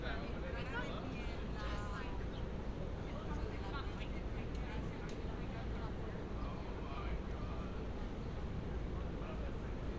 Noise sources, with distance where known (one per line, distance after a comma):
person or small group talking, near